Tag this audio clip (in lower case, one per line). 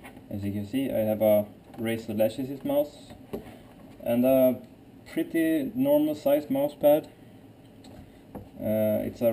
speech